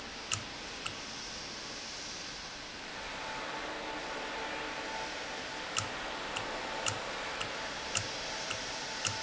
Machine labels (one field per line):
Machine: valve